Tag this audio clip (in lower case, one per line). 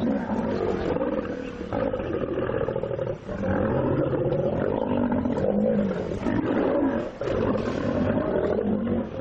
animal
roaring cats
roar
lions growling